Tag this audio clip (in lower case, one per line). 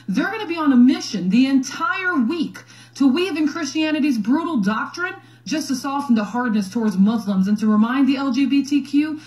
speech